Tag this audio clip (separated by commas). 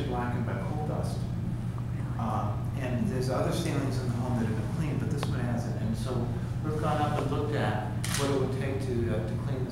Speech